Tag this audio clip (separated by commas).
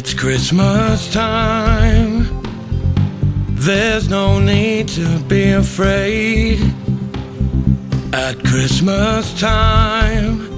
Music